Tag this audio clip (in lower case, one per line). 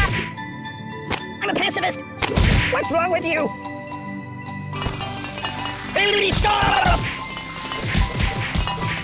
speech
music